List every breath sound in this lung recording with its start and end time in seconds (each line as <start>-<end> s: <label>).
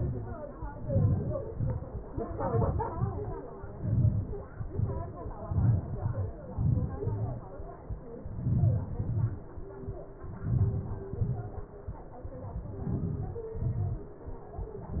0.91-1.45 s: inhalation
1.53-1.91 s: exhalation
2.46-2.89 s: inhalation
2.97-3.38 s: exhalation
3.88-4.28 s: inhalation
4.72-5.09 s: exhalation
5.50-5.95 s: inhalation
5.98-6.30 s: exhalation
6.60-7.04 s: inhalation
7.12-7.39 s: exhalation
8.47-8.92 s: inhalation
8.98-9.47 s: exhalation
10.52-11.05 s: inhalation
11.24-11.69 s: exhalation
12.85-13.48 s: inhalation
13.67-13.99 s: exhalation